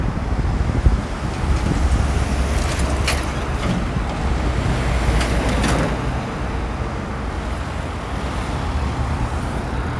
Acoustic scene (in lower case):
street